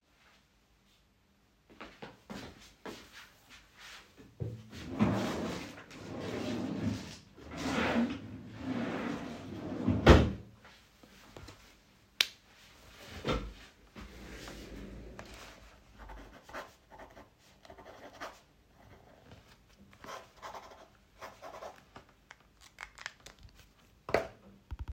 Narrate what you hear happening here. I walk towards drawer opens it; takes a pen, closes the drawer, writes on the book.